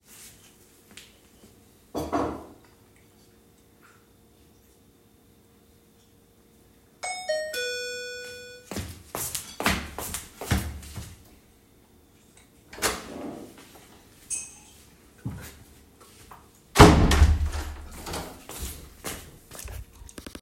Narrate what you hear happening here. I was sitting in the living room when the doorbell rang. I stood up and started walking toward the entrance. then I open and close the door